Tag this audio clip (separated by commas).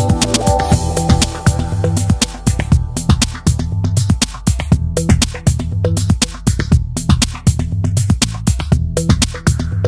Music